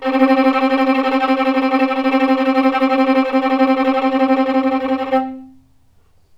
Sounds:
Bowed string instrument, Music, Musical instrument

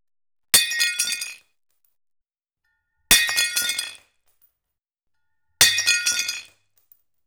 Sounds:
Shatter, Glass

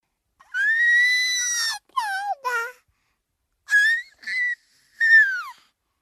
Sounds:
Singing, Human voice

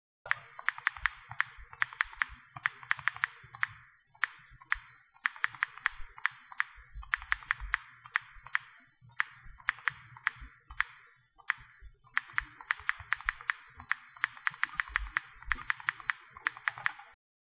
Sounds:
Typing, home sounds

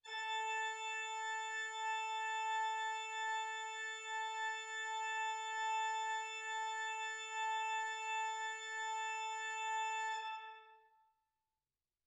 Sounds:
Organ, Musical instrument, Keyboard (musical), Music

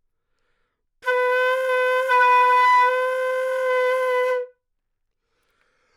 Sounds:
woodwind instrument, Music, Musical instrument

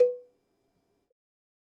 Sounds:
Bell, Cowbell

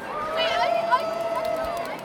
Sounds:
Crowd, Human group actions

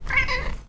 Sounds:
Animal, Cat, pets, Meow

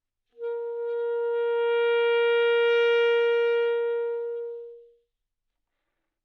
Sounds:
Wind instrument, Musical instrument, Music

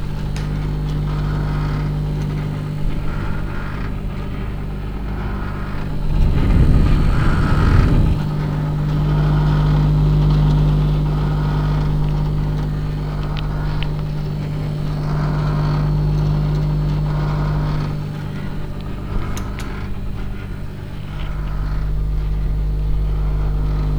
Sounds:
Microwave oven, home sounds

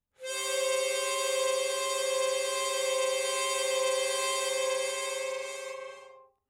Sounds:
Harmonica, Musical instrument, Music

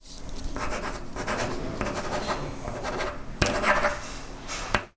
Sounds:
home sounds, Writing

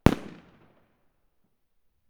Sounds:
Fireworks, Explosion

